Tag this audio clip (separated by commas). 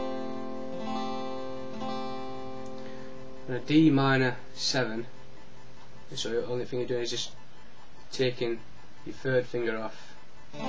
Music, Acoustic guitar, Strum, Speech, Musical instrument, Guitar, Plucked string instrument